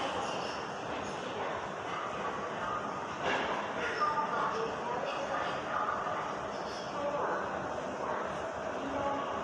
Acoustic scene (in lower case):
subway station